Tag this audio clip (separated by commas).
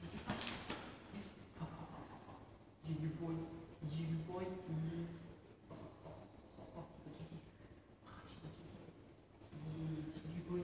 Speech